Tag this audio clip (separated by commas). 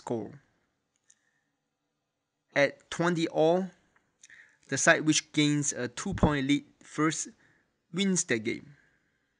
Speech